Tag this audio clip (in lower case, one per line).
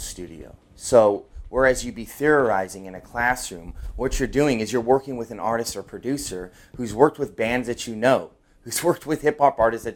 speech